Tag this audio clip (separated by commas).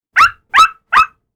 Domestic animals, Dog, Animal